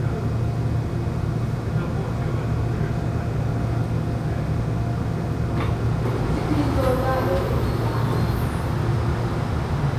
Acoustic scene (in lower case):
subway train